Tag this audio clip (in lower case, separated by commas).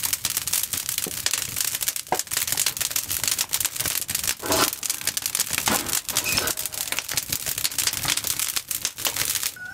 outside, rural or natural